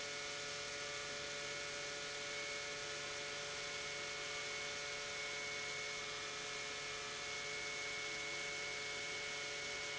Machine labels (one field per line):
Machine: pump